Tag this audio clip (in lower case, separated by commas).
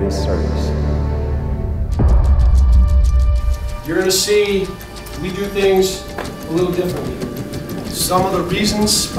speech, music